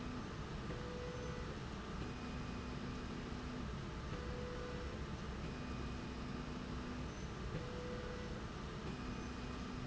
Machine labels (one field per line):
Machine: slide rail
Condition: normal